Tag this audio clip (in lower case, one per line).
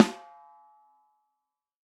snare drum
percussion
drum
music
musical instrument